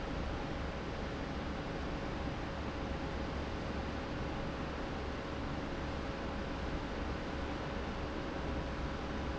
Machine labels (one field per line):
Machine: fan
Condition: abnormal